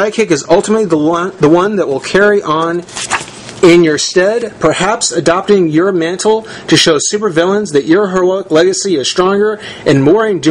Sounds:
speech

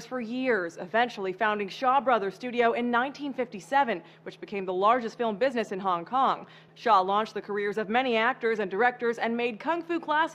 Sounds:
speech

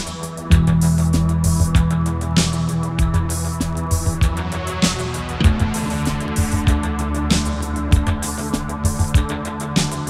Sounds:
music

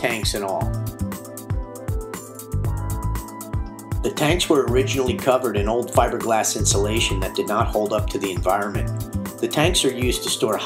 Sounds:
speech, music

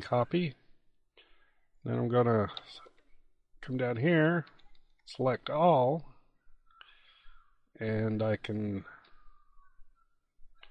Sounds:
speech

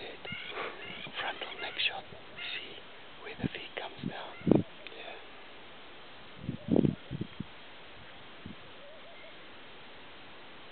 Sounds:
speech

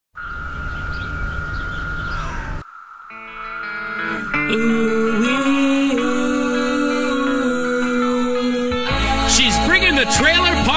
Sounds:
environmental noise, speech, music

